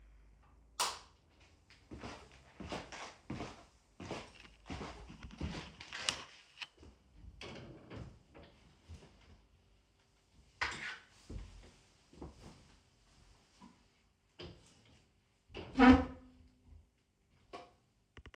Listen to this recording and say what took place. I turned on the room light using the switch. Then I walked over to the wardrobe, opened the door to grab a jacket, and closed it.